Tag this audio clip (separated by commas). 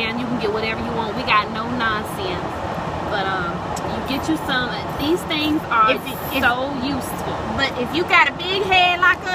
Speech